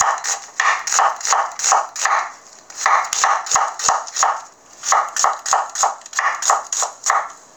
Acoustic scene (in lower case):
kitchen